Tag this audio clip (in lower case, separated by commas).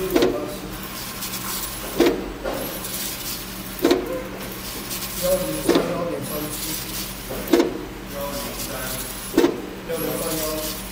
speech, printer